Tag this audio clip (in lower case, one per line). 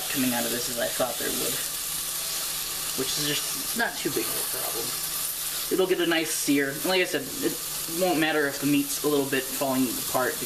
speech